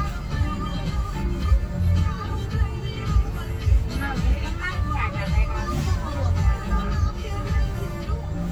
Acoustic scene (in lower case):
car